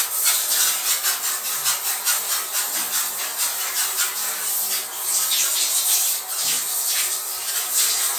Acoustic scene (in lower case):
restroom